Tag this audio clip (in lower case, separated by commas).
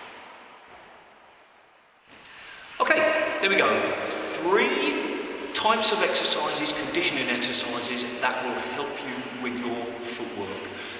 playing squash